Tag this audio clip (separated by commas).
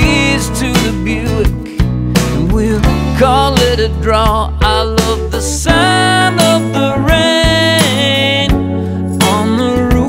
Music